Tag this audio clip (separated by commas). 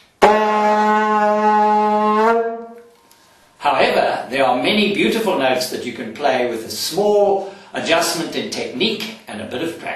Speech